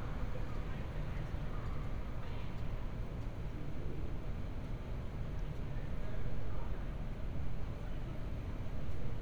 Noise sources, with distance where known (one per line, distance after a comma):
person or small group talking, far